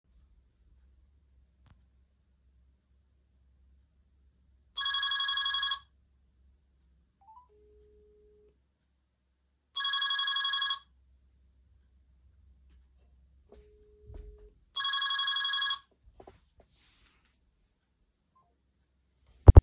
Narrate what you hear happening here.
someone calling someone on the phone in the same room